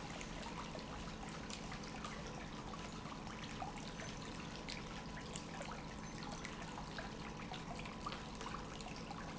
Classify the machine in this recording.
pump